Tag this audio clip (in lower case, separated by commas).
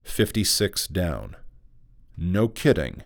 human voice, man speaking, speech